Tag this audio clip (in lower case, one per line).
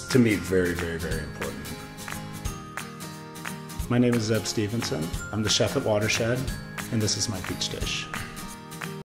music
speech